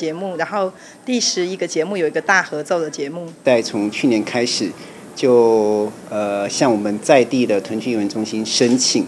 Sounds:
inside a small room, Speech

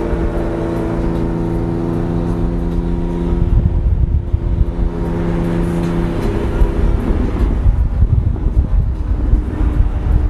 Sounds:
Vehicle, outside, rural or natural, Car

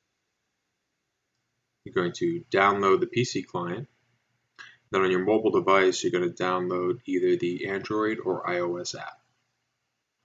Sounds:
Speech

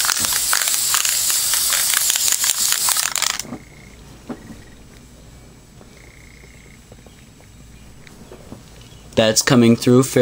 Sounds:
Speech

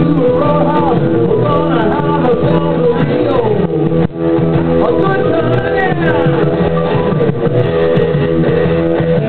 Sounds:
Strum, Guitar, Electric guitar, Plucked string instrument, Musical instrument, Music

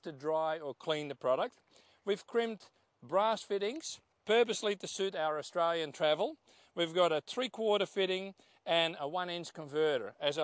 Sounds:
Speech

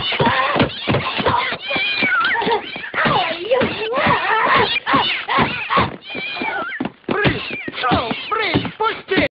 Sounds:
Meow, Cat, Domestic animals, Caterwaul, Animal

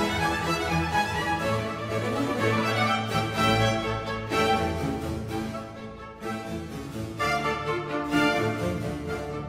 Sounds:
Musical instrument, Music, fiddle

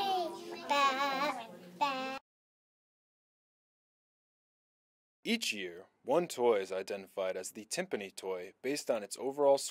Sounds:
Speech, Child speech

